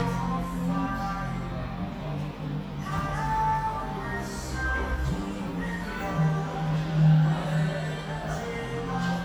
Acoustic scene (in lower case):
cafe